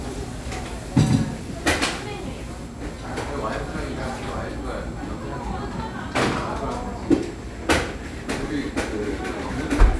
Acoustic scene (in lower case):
cafe